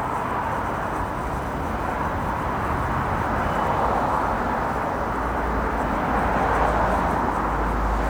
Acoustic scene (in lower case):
street